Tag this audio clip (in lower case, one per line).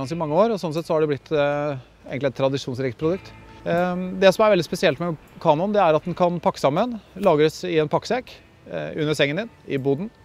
music
speech